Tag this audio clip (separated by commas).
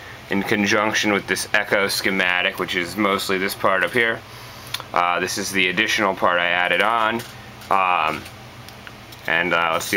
Speech